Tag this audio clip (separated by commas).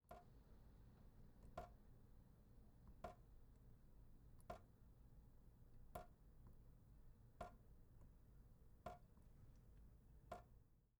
Liquid, Sink (filling or washing), Drip, faucet, home sounds